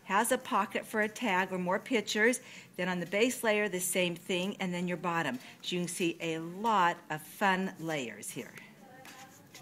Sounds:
speech

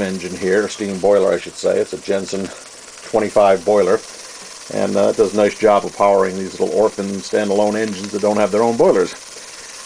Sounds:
speech

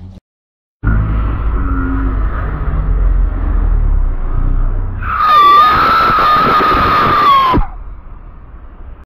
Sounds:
car passing by
skidding
motor vehicle (road)
car
vehicle

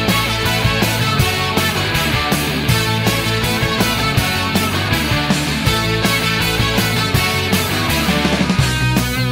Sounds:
rock music
music
theme music

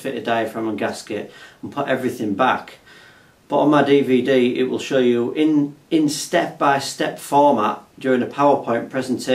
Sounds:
speech

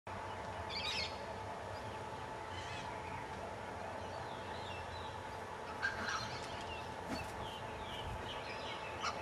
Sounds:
bird
outside, rural or natural
bird vocalization

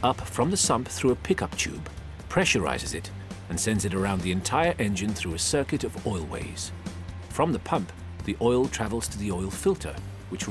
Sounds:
speech
music

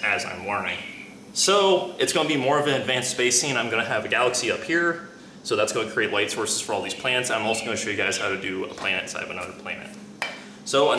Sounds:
speech

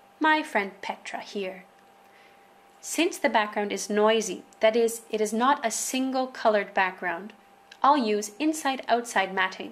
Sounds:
speech

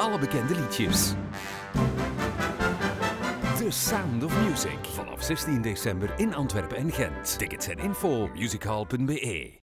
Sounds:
music
exciting music
speech

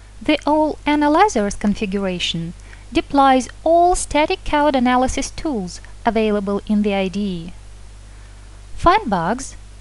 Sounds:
speech
static

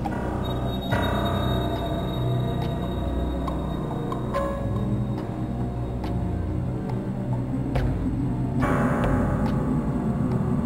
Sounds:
music
soundtrack music

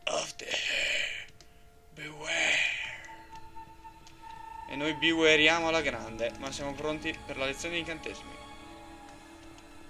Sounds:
speech

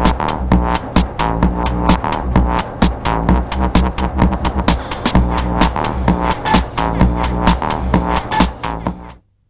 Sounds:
music
techno

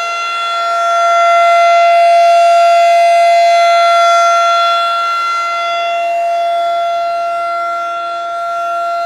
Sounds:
siren

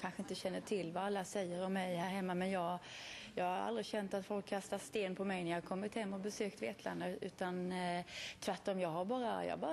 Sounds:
speech

